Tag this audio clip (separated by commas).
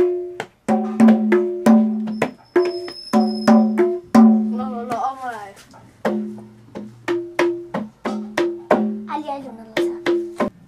Music, inside a small room, Speech